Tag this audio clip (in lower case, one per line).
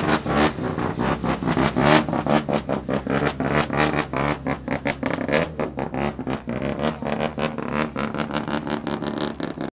vehicle
engine
idling